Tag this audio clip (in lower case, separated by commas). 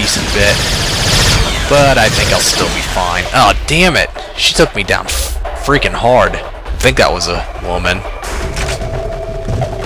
inside a large room or hall, speech